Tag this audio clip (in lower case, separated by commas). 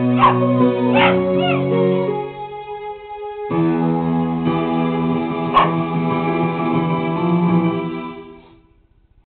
bow-wow, music